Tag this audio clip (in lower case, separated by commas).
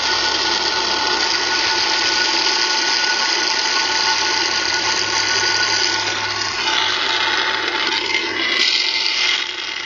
pump (liquid)